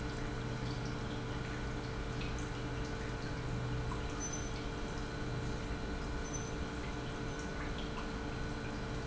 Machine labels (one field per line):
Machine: pump